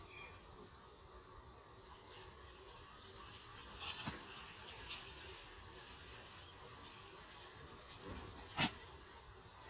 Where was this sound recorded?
in a park